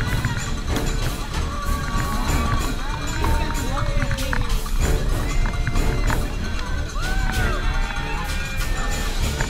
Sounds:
outside, urban or man-made, music, speech, run

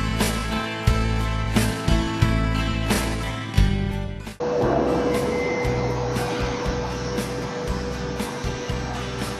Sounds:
drill, music

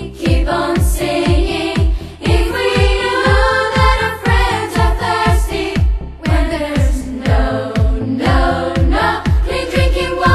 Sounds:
music

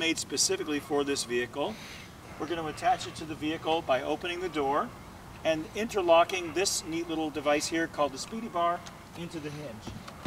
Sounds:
speech

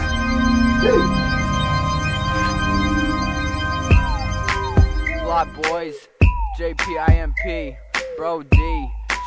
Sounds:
independent music, music

